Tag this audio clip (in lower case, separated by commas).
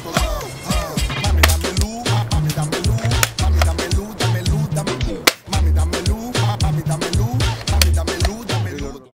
speech, music